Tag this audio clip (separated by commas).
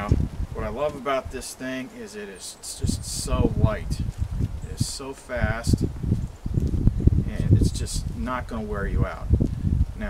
outside, rural or natural, Speech